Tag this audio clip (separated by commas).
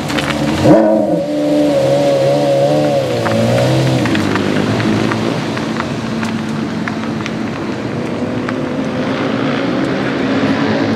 vroom